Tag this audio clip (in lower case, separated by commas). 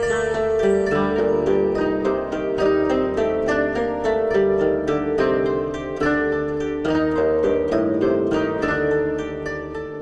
music, harp